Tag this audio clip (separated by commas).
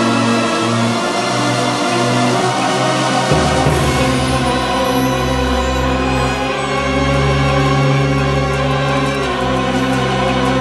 Music